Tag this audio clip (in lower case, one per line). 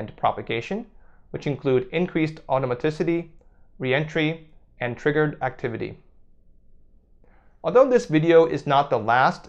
speech